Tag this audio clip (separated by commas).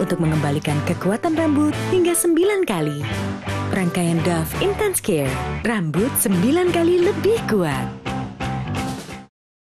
Music, Speech